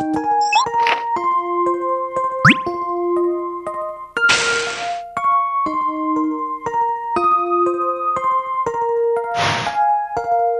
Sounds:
music

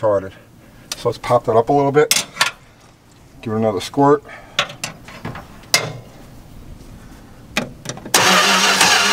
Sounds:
car engine starting

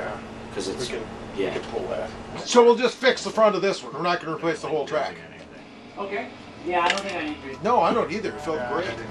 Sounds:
music, speech

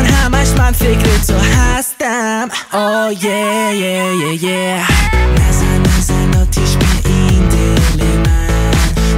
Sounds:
music, pop music, rock and roll

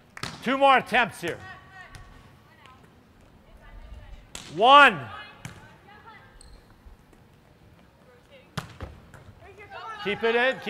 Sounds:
inside a large room or hall, speech

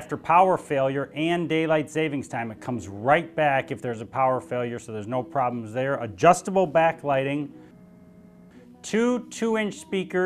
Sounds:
speech, music

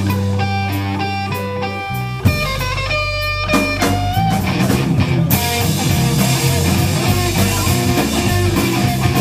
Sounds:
guitar, musical instrument, strum, music, plucked string instrument

